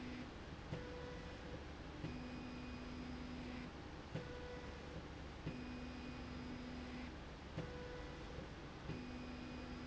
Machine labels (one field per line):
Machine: slide rail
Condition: normal